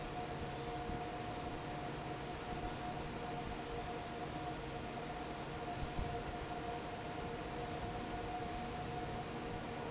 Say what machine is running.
fan